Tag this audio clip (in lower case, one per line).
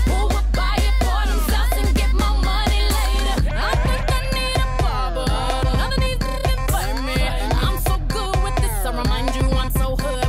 music
music of asia